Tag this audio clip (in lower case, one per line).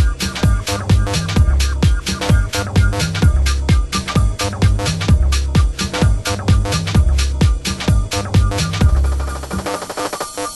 drum and bass
music